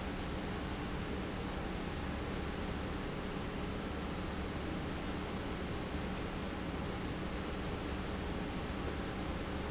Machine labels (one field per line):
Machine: pump